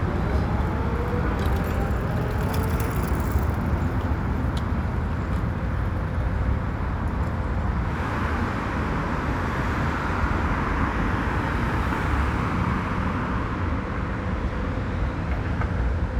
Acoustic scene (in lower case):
street